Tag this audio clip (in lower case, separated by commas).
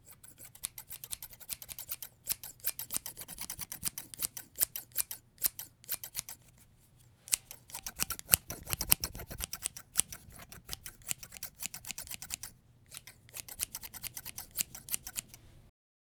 scissors, home sounds